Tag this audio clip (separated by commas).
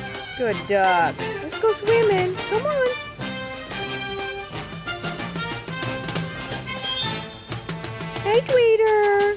Speech, Music